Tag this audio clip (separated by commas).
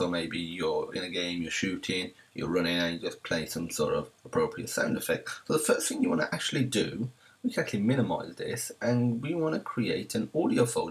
Speech